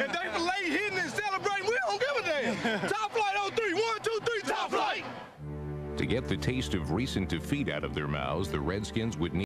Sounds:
speech, music

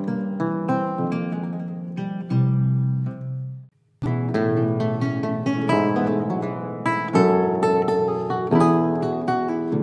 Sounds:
folk music, theme music, music

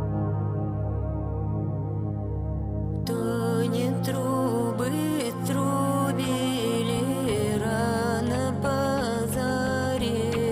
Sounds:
music

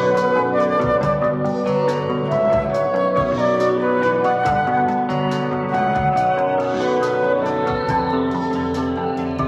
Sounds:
music

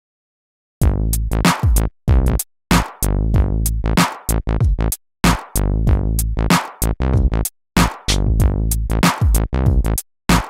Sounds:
drum machine, sampler, music, electronic music, musical instrument

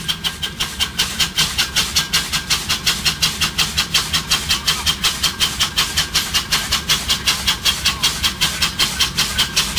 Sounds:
hiss, steam

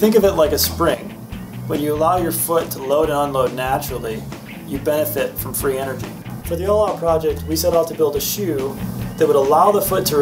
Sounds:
speech, music

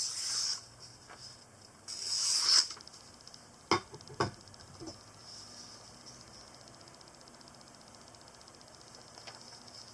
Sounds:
sharpen knife

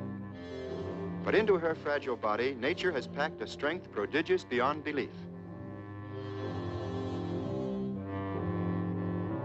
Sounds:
speech, music

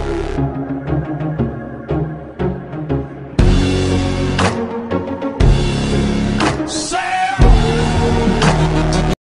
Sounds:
music

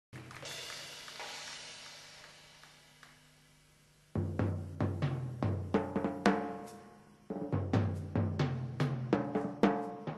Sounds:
music, musical instrument, drum, drum kit

